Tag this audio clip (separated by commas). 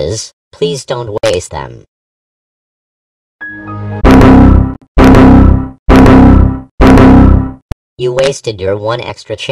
Speech, Music